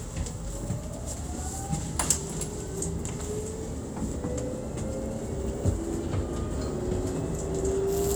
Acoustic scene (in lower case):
bus